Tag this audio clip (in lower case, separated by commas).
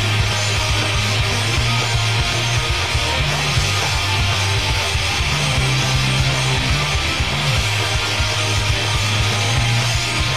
music